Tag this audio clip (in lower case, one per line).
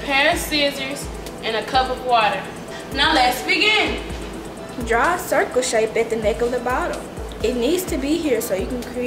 speech
music